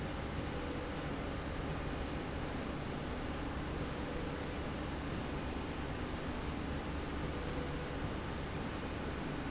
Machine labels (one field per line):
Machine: slide rail